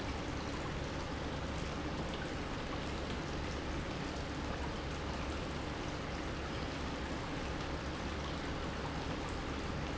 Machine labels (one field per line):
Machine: pump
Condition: normal